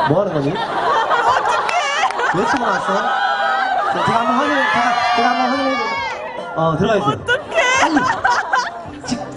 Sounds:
speech

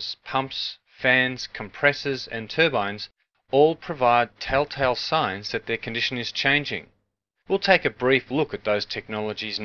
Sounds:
speech synthesizer
speech

